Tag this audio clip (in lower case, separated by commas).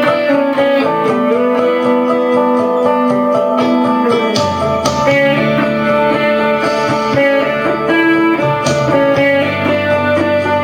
musical instrument, acoustic guitar, plucked string instrument, guitar, electric guitar, music